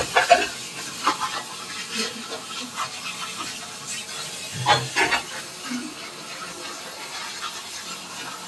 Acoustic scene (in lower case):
kitchen